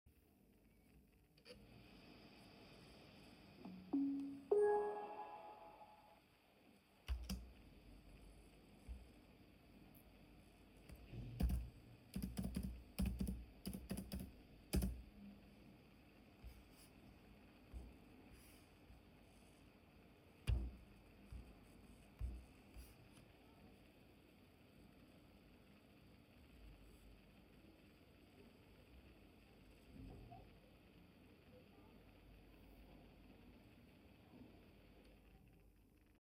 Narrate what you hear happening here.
i pressed the power button on my laptop. after that I waited and entered my password. the laptop turned on. then i shut it down again and waited until it shut down completely.